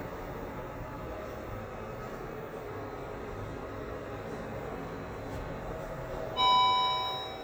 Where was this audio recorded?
in an elevator